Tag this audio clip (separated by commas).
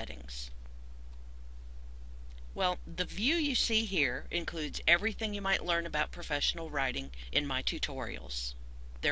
Speech